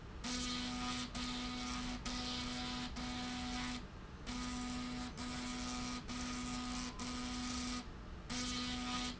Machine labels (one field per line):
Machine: slide rail